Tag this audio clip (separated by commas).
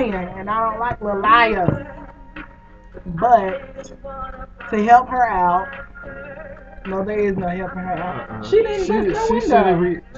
Speech, Music